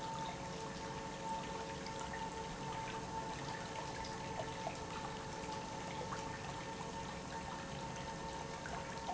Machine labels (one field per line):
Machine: pump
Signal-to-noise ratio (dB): 0 dB